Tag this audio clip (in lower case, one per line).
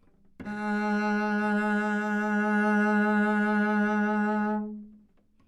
music
bowed string instrument
musical instrument